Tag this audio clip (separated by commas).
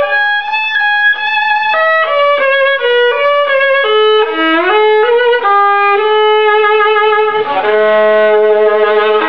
Musical instrument, Violin, Music